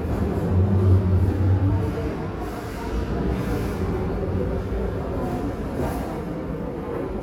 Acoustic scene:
crowded indoor space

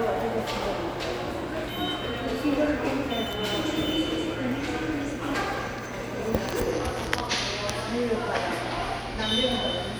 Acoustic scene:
subway station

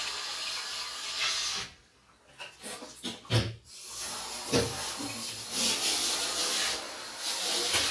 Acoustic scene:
restroom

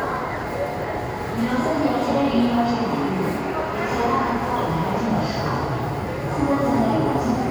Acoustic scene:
subway station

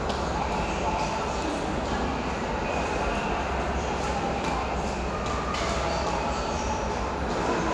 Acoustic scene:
subway station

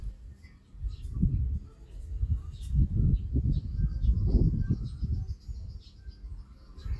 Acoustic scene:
park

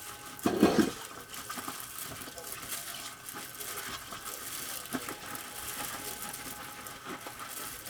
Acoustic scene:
kitchen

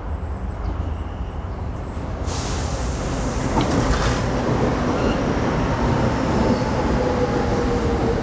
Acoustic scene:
subway station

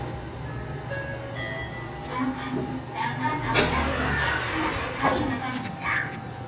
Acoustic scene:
elevator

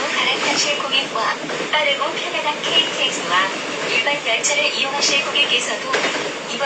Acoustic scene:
subway train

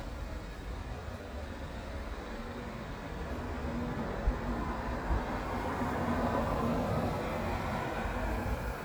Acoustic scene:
street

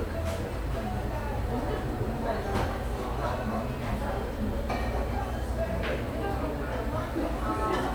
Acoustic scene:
cafe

